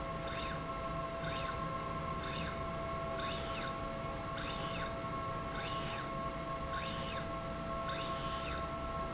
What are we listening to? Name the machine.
slide rail